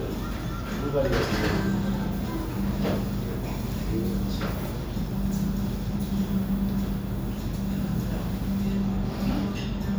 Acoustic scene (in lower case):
restaurant